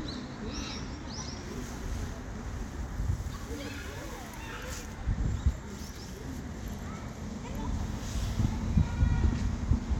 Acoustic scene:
residential area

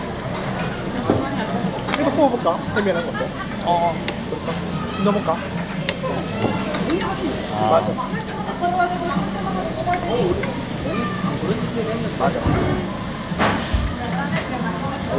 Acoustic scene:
restaurant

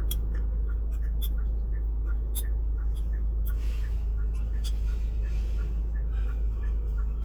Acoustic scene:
car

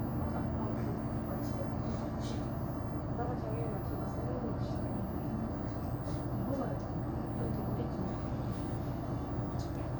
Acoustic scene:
bus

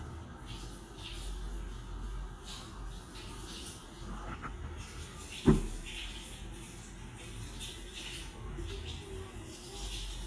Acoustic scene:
restroom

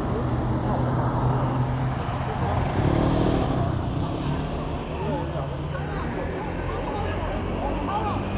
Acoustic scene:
street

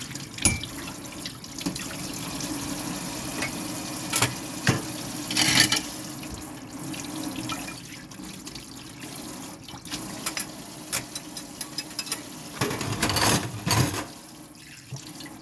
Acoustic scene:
kitchen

